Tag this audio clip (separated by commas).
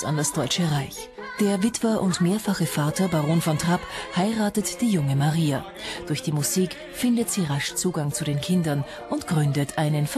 Speech, Exciting music, Music